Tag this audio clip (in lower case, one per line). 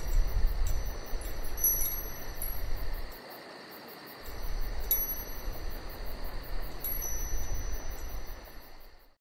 wind chime
chime